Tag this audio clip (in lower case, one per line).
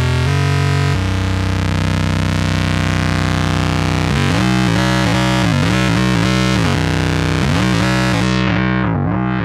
playing synthesizer